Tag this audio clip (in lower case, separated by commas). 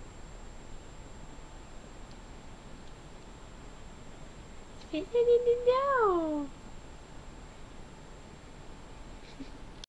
speech